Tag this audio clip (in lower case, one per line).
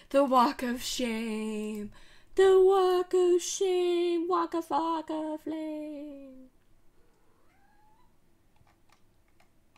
speech